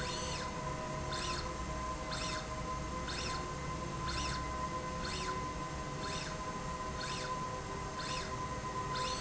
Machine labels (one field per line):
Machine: slide rail